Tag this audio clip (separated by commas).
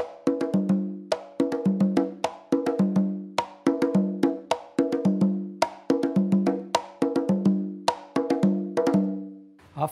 playing congas